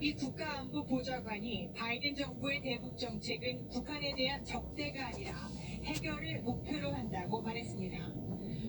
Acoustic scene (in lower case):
car